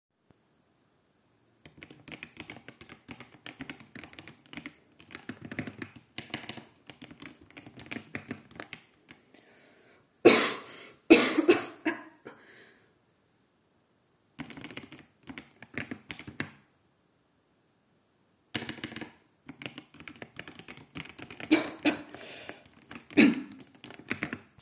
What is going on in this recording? I started typing on the keyboard, then stopped, coughed a little, continued to type. Then I made one more break. After starting typing again, I coughed.